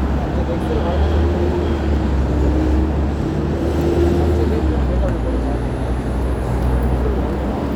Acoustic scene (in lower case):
street